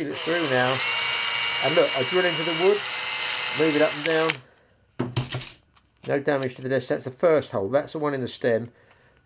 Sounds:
drill, tools, power tool

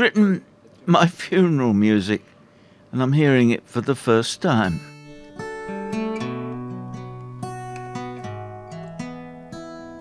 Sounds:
music, speech

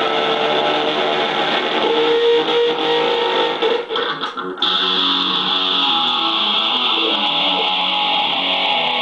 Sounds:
electric guitar, music, guitar, musical instrument, plucked string instrument

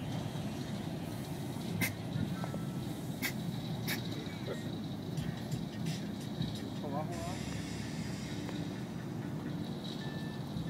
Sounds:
music, speech

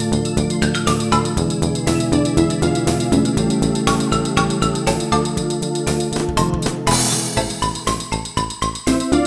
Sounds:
music

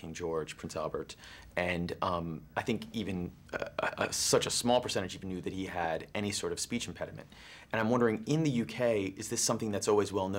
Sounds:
man speaking, monologue, speech

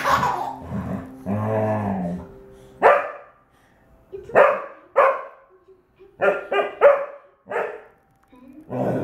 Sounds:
speech, dog, animal, pets

